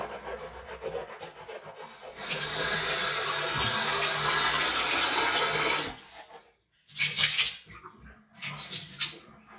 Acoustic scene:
restroom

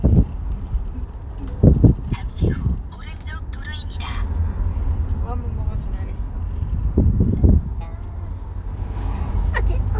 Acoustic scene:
car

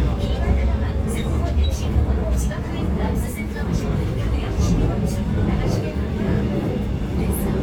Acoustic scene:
subway train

